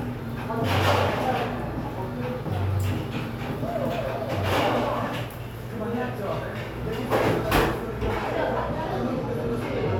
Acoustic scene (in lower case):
cafe